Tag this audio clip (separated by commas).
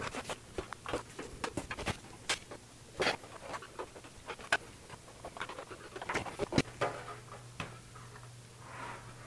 inside a small room